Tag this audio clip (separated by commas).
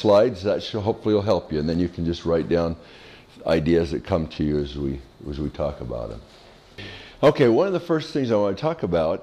Speech